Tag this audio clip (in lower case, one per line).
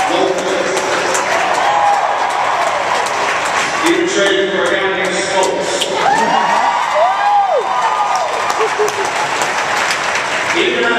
man speaking
monologue
speech